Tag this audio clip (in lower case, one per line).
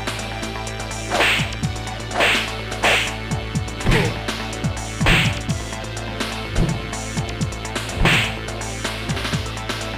music